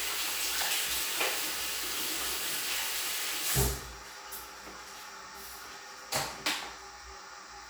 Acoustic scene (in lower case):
restroom